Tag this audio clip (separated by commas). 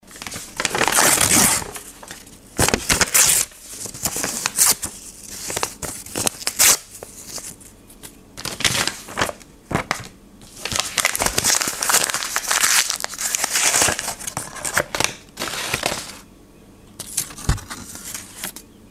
Tearing, crinkling